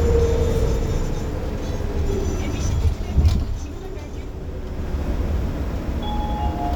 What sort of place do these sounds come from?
bus